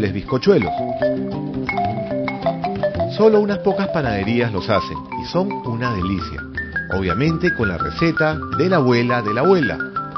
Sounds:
marimba, speech, music, percussion

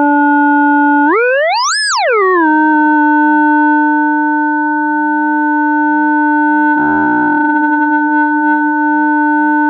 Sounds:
cacophony

